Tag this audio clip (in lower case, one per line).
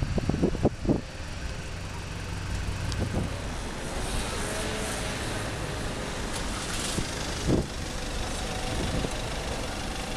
bicycle
vehicle
traffic noise